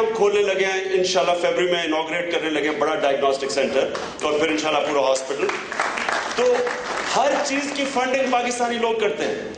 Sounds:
speech, narration, man speaking

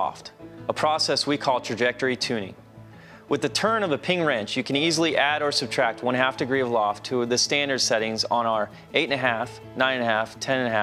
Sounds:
music, speech

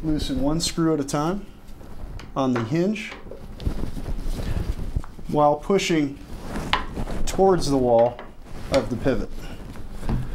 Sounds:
speech, tap

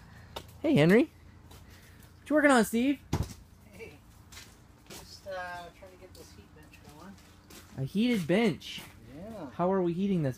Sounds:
speech

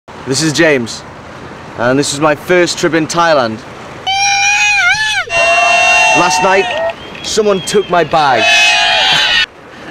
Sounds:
outside, rural or natural, speech

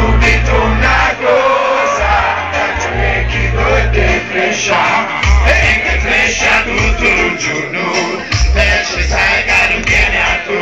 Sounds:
music, hubbub

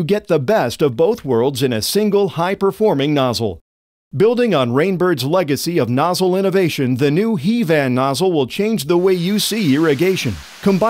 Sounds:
speech

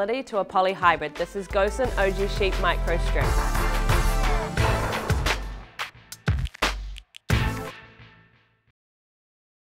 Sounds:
speech, music

